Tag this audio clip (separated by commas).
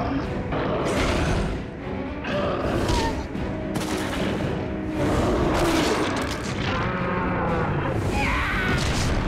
Music